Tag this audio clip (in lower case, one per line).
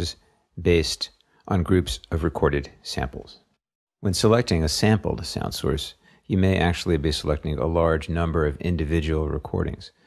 speech